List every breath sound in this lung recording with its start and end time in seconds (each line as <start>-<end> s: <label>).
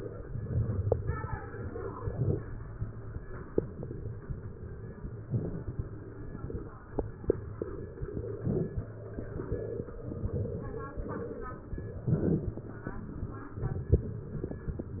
0.22-1.52 s: inhalation
1.53-3.23 s: exhalation